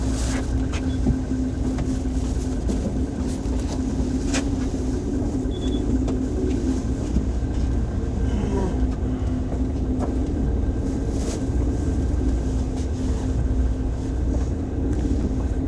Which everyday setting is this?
bus